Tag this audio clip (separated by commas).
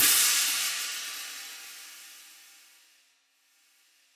Music, Musical instrument, Hi-hat, Cymbal, Percussion